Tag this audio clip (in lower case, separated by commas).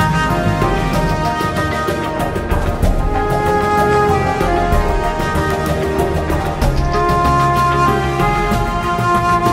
music